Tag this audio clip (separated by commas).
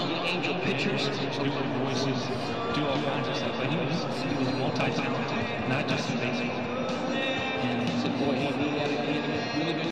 Music, Speech